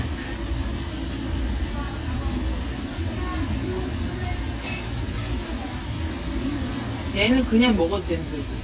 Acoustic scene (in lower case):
restaurant